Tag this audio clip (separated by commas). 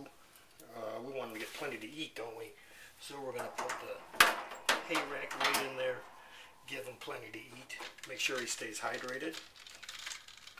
Speech